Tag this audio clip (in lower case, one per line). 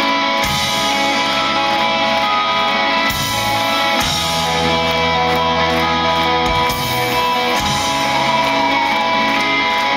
music